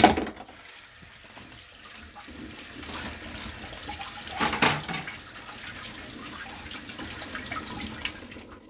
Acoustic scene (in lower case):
kitchen